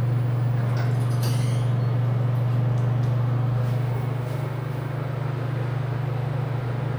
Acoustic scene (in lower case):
elevator